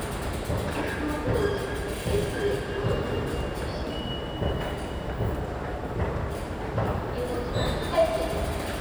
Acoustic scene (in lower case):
subway station